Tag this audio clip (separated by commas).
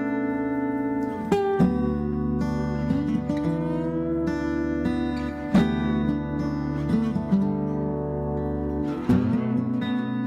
Acoustic guitar, Guitar, Music, Plucked string instrument, Musical instrument